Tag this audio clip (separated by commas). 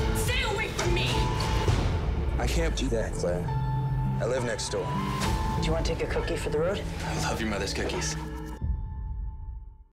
Music, Speech